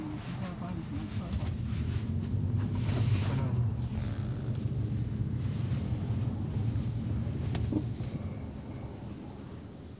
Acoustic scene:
car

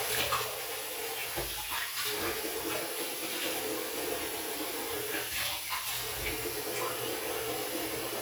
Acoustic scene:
restroom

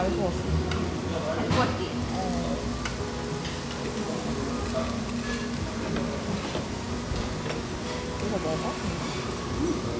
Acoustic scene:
restaurant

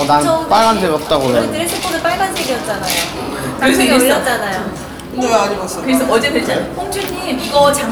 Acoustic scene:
cafe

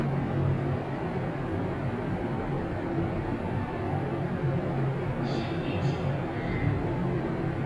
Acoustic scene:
elevator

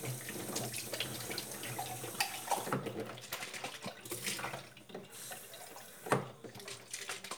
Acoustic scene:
kitchen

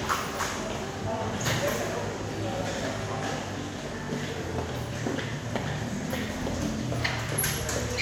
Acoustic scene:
subway station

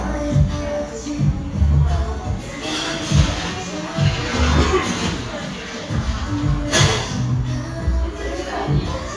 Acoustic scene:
cafe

